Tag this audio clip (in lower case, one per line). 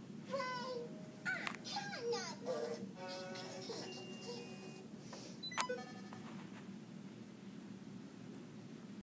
speech
music